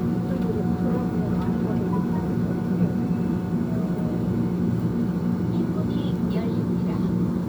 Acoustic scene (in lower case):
subway train